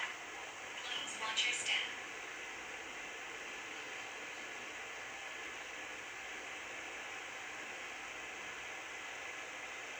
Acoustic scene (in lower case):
subway train